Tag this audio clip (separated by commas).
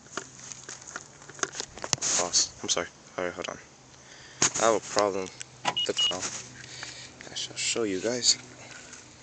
Speech, outside, urban or man-made